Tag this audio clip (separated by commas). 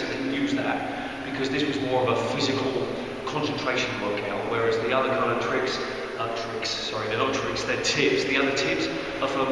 playing squash